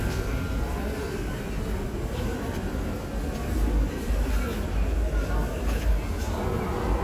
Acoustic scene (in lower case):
subway station